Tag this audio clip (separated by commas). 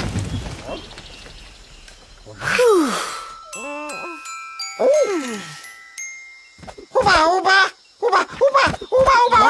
Speech, Music, Groan